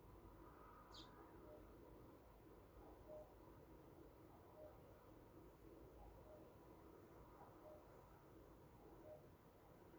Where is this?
in a park